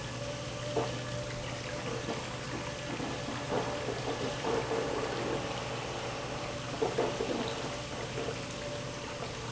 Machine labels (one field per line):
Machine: pump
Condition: abnormal